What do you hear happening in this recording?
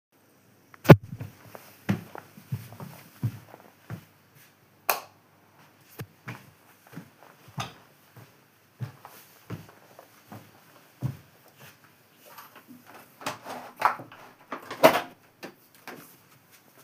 I walk into the room and turn on the light. I walk to the window and open it. Afterwards I move around the room.